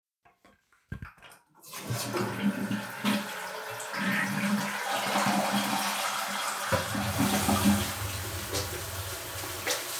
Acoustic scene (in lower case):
restroom